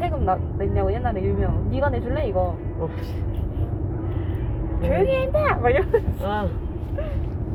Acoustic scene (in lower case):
car